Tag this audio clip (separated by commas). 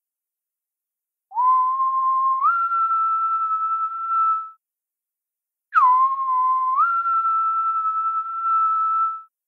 Whistling, Music